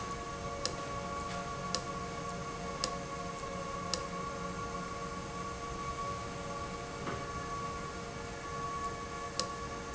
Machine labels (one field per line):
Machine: valve